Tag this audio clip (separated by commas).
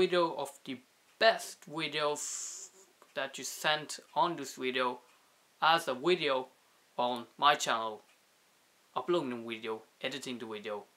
Speech